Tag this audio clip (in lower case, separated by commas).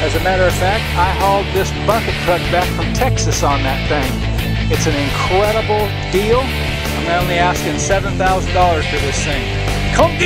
music, speech